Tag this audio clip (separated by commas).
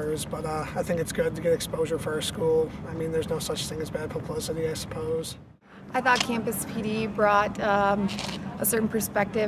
Speech